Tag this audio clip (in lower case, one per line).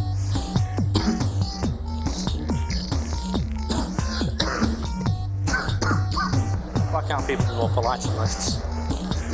speech
music